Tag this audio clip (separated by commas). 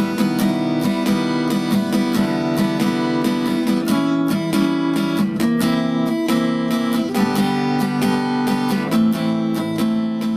Musical instrument, Guitar, Music